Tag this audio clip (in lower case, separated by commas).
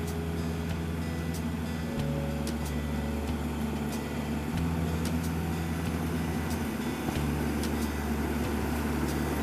tractor digging